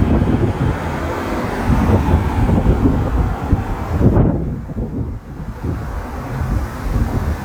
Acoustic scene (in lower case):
street